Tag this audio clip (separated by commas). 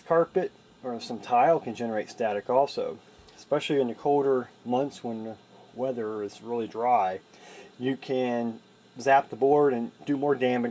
Speech